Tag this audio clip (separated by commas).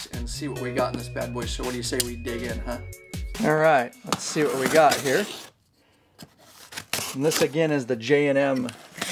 Music, inside a small room, Speech